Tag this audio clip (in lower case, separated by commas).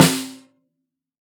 music, percussion, musical instrument, snare drum, drum